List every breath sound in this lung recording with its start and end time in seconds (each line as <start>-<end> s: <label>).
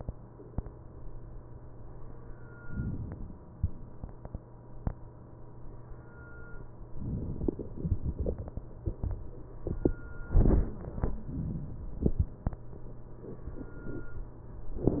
2.68-3.56 s: inhalation
6.99-7.77 s: inhalation